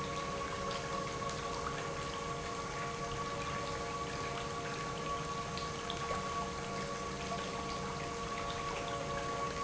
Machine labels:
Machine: pump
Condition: normal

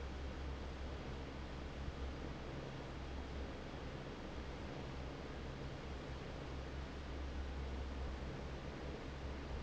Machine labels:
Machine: fan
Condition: normal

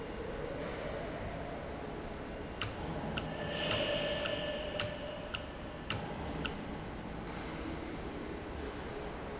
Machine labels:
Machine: valve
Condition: normal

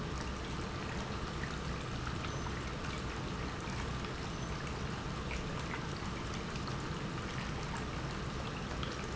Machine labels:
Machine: pump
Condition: normal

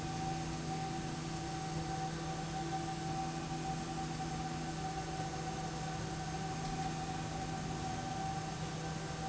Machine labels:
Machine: slide rail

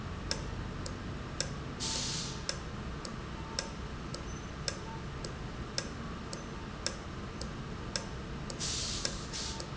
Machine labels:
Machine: valve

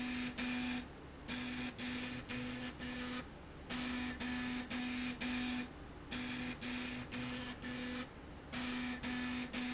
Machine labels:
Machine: slide rail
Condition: abnormal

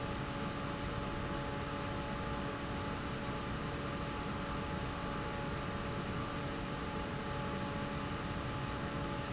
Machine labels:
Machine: fan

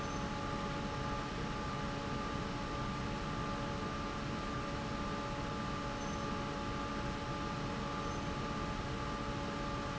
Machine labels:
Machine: fan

